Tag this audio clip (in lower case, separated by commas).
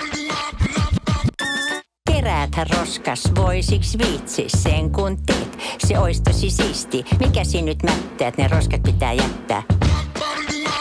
rapping